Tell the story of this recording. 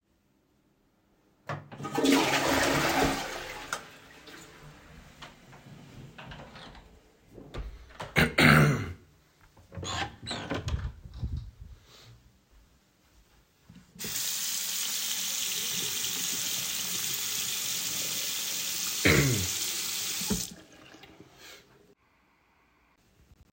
I flushed the toilet, turned off the lights and closed the door. I coughed and opened the door to the bathroom. There I used the soap dispenser and washed my hands with running water. I coughed again.